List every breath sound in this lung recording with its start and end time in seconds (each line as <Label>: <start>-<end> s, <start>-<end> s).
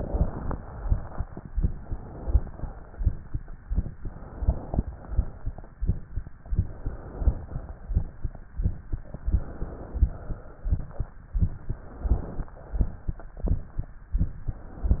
Inhalation: 0.00-0.52 s, 1.59-2.48 s, 4.00-4.80 s, 6.52-7.43 s, 9.23-10.01 s, 11.47-12.54 s, 14.50-15.00 s
Exhalation: 0.56-1.37 s, 2.50-3.33 s, 4.83-5.73 s, 7.45-8.36 s, 10.07-11.14 s, 12.58-13.64 s